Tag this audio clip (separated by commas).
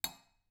silverware, home sounds